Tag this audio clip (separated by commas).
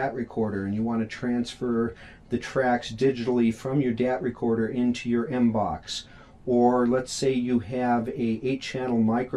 Speech